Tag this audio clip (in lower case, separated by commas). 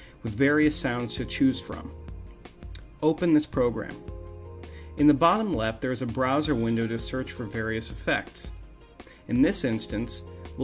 speech, music